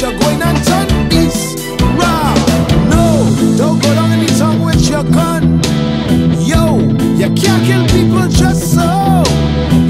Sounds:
Progressive rock, Exciting music, Music

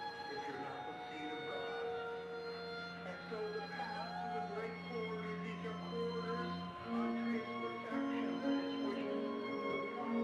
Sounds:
Music, Speech

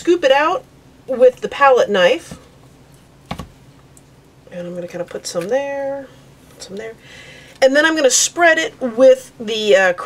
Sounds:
Speech

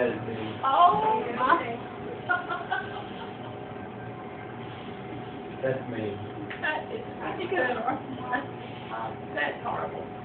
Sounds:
Speech

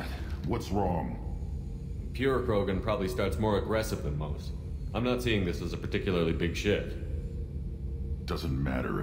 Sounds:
Speech

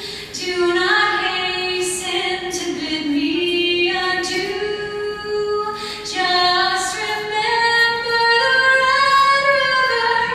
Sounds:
Female singing

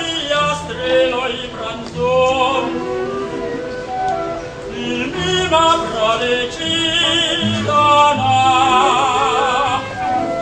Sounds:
Singing, Male singing, Opera, Music

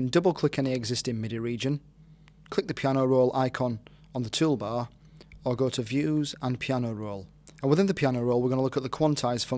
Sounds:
Speech

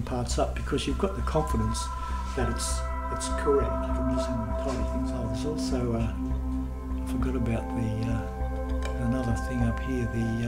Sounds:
Music, Speech

